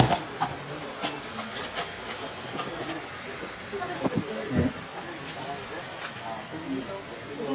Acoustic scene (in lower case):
crowded indoor space